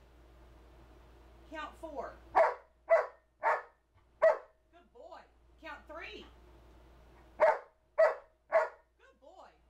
An adult female speaks and a dog barks